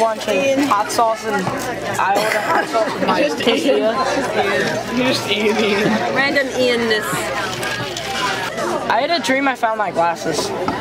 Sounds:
chatter
inside a public space
speech

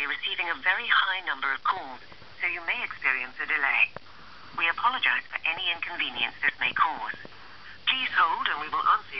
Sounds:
speech

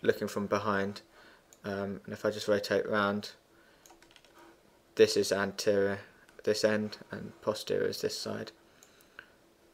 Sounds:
computer keyboard

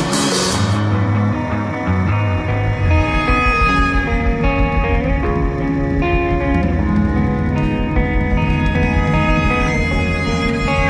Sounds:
music

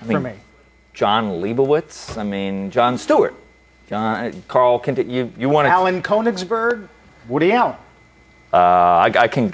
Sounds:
speech

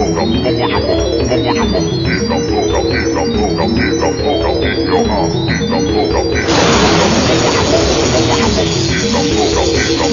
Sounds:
music

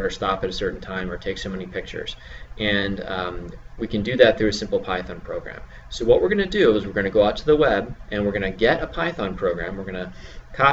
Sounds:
speech

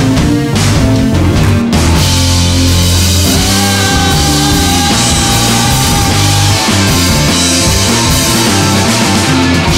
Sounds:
guitar
keyboard (musical)
music
progressive rock
rock music
heavy metal
musical instrument

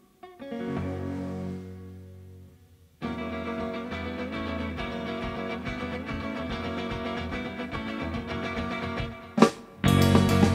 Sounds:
plucked string instrument
strum
music
guitar
musical instrument

